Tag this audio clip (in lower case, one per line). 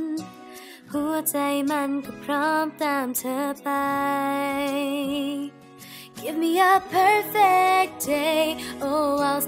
music